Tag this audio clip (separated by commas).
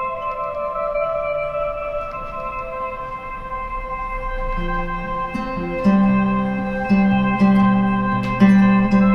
Music, inside a small room